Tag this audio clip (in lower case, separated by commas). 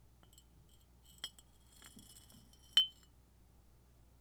glass, chink